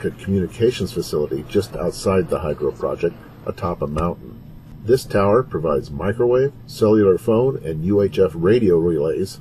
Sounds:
speech

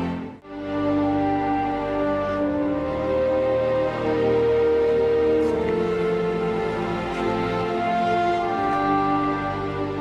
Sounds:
new-age music, music

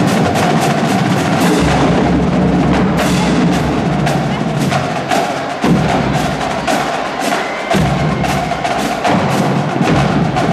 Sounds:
drum kit, bass drum, musical instrument, music, drum

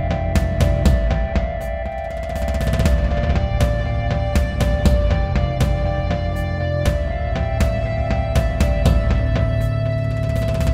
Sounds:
music

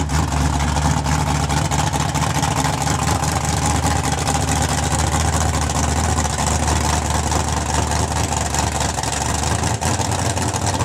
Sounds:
car, motor vehicle (road), vehicle

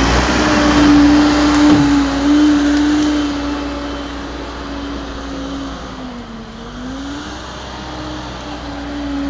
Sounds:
truck, vehicle

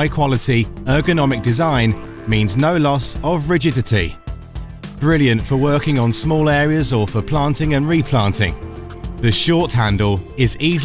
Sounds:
music, speech

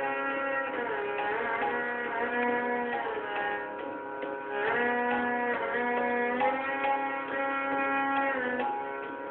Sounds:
music, musical instrument, violin

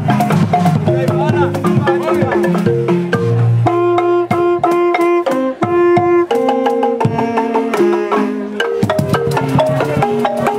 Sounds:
drum, percussion

